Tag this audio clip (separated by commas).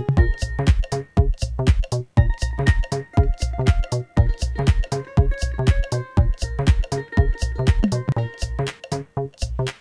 Techno, Music